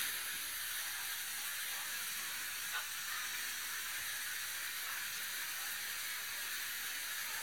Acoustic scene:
restaurant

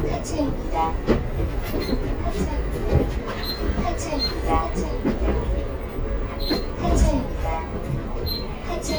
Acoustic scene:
bus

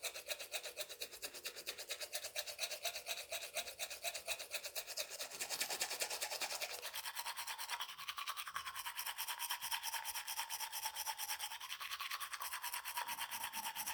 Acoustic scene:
restroom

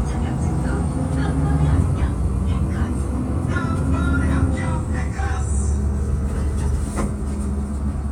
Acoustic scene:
bus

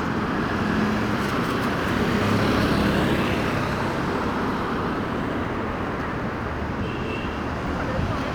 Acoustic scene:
street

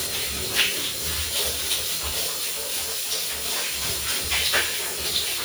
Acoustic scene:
restroom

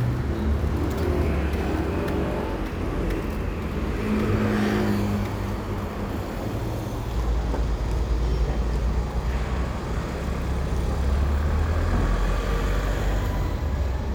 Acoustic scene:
street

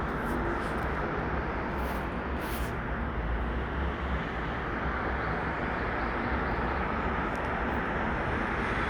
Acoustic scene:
street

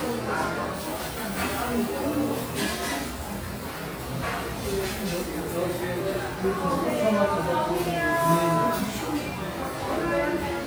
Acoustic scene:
crowded indoor space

